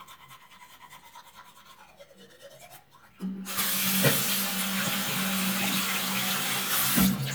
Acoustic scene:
restroom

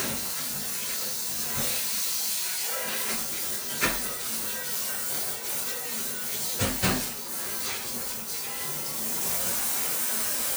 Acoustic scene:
kitchen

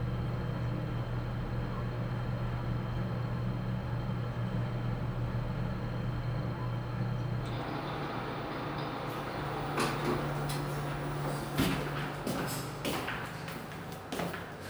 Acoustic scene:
elevator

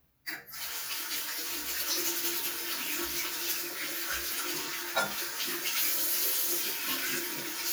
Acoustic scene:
restroom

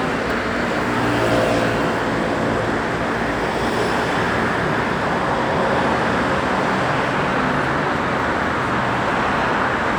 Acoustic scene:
street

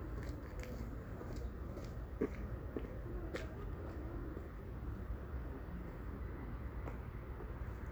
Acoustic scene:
residential area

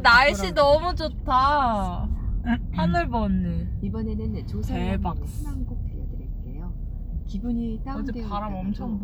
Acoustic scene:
car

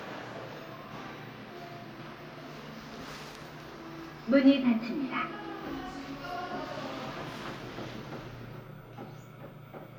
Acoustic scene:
elevator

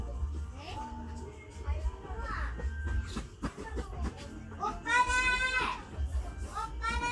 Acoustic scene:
park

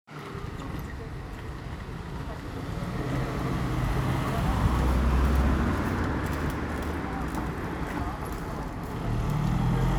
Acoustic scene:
residential area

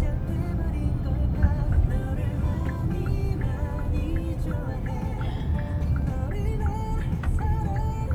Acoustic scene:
car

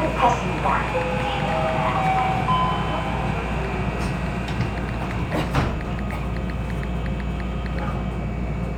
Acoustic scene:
subway train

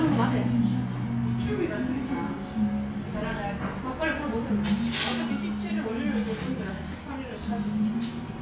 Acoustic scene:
restaurant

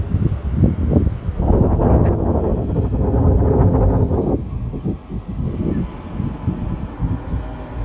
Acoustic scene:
residential area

